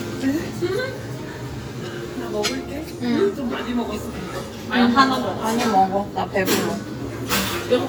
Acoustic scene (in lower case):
restaurant